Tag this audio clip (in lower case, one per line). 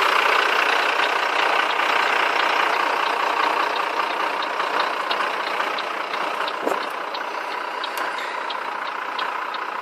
truck
vehicle